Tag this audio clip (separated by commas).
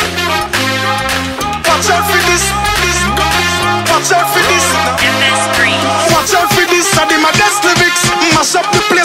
Music